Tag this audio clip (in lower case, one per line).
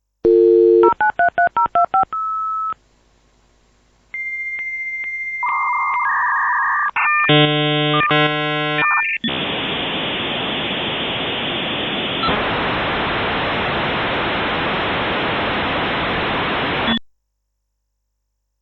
telephone
alarm